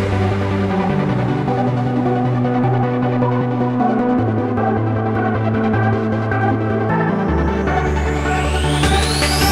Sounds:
Music

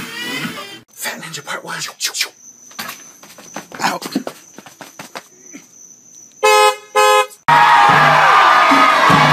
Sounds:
inside a large room or hall, Music, Speech, inside a small room

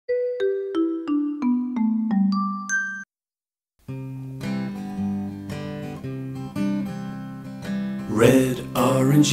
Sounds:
Music

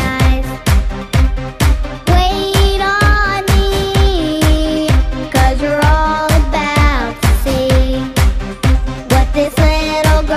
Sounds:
Music

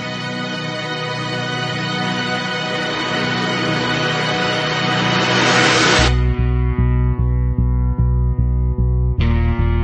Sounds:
Music

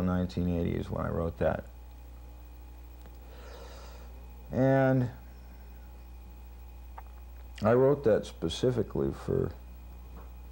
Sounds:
Speech

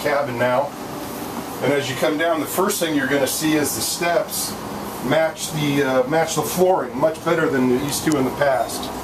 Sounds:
Speech

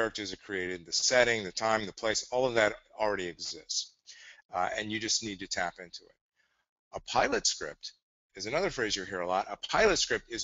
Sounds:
Speech

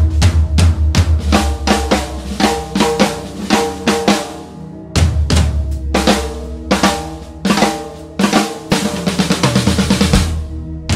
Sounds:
Bass drum, playing bass drum, Music

